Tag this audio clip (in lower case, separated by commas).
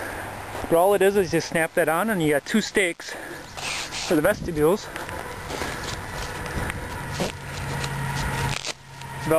outside, rural or natural, speech